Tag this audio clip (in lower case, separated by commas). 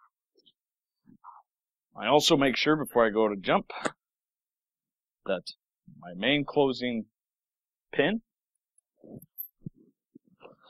speech